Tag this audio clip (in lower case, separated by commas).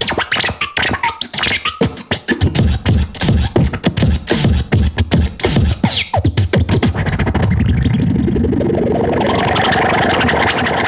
scratching (performance technique), music, electronic music